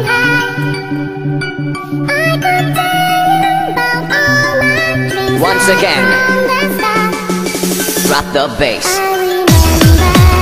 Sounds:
music
speech

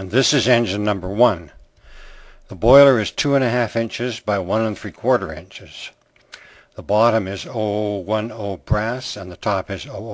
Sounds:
speech

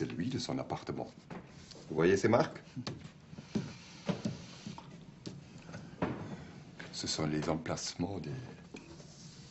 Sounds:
speech

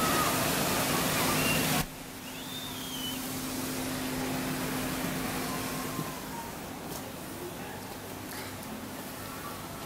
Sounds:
water

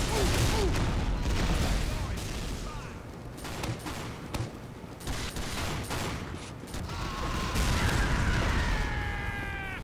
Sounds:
speech

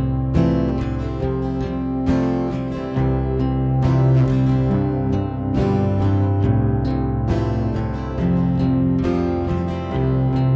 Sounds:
music

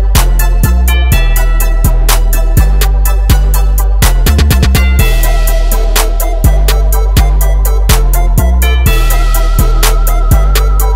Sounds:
music

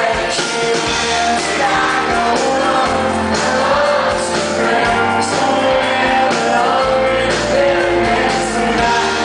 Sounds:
male singing
music

